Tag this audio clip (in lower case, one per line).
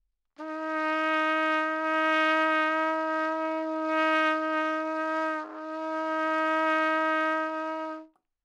trumpet
brass instrument
musical instrument
music